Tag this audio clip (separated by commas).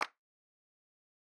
Hands, Clapping